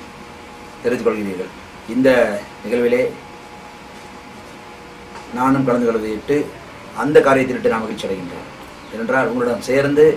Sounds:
Speech, Male speech

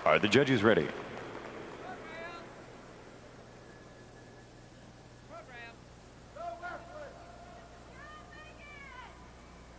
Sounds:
Speech

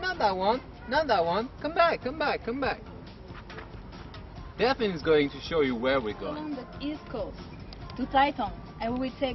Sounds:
Speech, Music

